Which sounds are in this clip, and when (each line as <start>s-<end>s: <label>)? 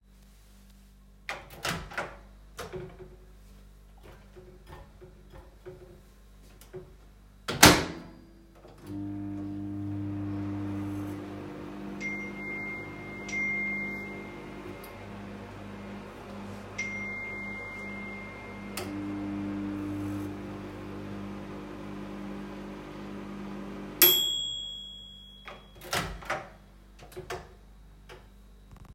1.1s-27.6s: microwave
4.7s-7.0s: cutlery and dishes
11.7s-15.7s: phone ringing
16.7s-18.9s: phone ringing